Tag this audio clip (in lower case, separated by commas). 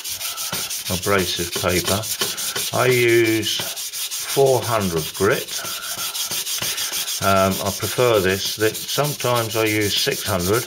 speech